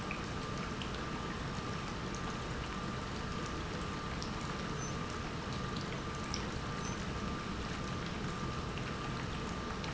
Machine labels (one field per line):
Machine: pump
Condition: normal